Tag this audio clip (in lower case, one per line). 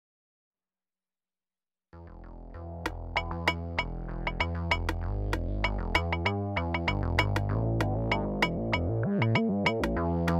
musical instrument
synthesizer
playing synthesizer
music
keyboard (musical)